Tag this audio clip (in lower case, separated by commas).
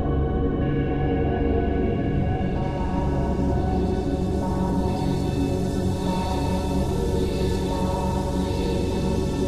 electronic music, music, ambient music